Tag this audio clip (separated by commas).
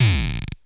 Music, Musical instrument